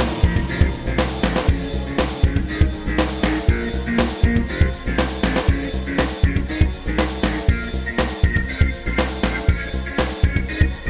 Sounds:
Music

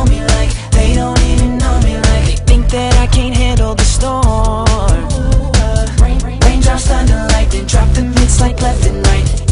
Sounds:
Music

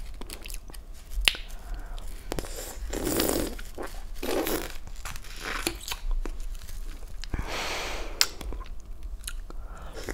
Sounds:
people slurping

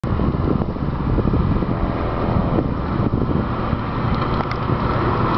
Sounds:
Vehicle

